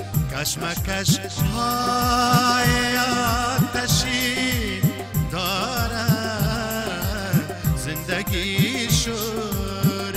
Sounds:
music

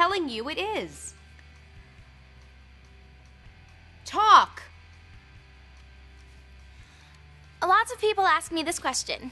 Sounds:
speech

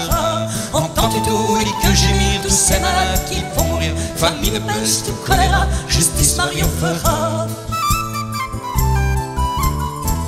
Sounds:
music

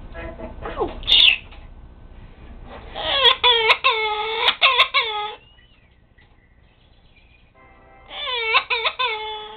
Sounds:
domestic animals
animal

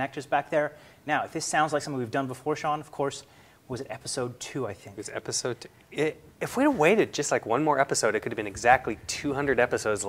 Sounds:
speech

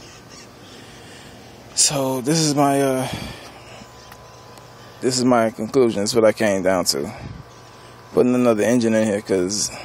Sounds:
speech

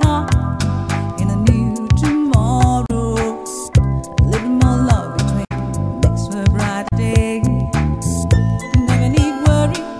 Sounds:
music

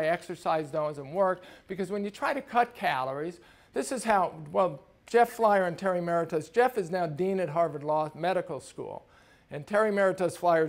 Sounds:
speech

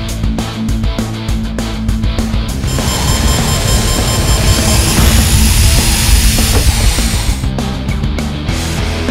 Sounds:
music

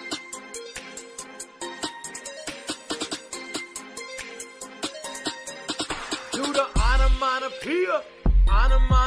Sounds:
music

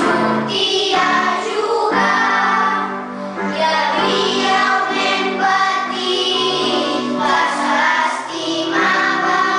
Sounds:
music

